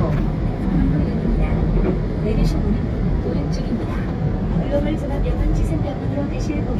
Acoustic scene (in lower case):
subway train